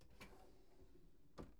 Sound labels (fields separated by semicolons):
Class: drawer; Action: opening